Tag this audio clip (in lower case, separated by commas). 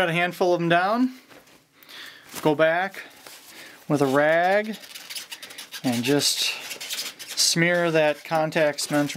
speech